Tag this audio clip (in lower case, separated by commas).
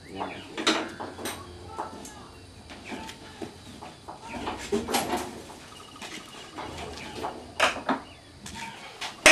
speech